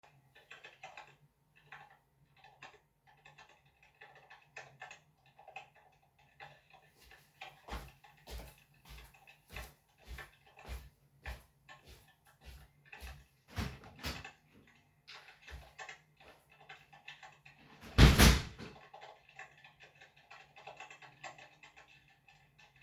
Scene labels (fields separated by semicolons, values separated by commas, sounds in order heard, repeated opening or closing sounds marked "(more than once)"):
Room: office; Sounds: keyboard typing, footsteps, door (more than once)